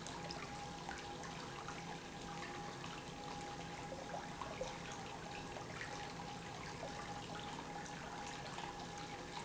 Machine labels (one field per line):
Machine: pump